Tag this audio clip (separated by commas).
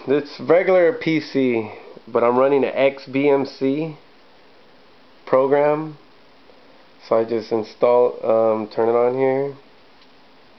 Speech, inside a small room